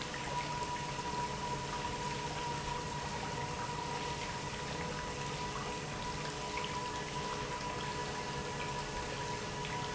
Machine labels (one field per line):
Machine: pump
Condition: normal